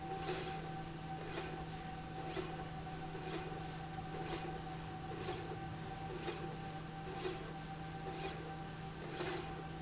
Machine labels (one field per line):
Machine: slide rail